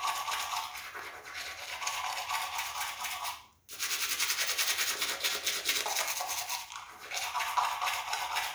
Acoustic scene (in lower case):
restroom